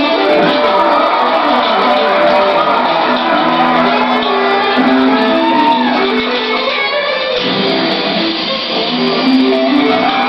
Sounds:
music, strum, guitar, electric guitar, musical instrument

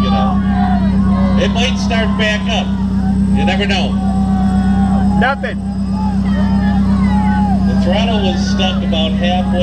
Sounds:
vehicle, speech

